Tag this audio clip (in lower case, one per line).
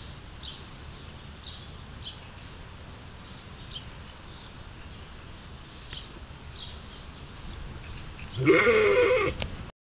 bleat
sheep
sheep bleating